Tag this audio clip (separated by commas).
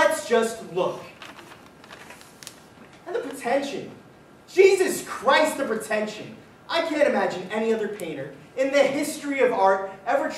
Speech, Narration